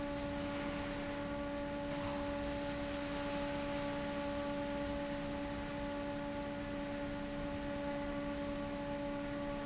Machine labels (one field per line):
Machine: fan